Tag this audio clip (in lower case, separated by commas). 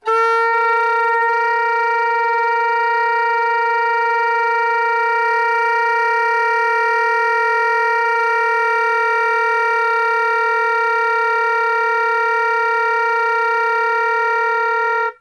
music, musical instrument, wind instrument